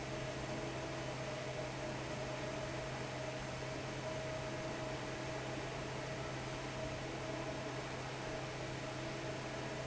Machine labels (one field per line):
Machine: fan